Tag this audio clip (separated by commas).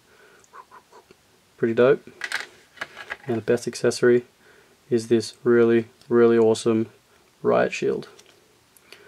Speech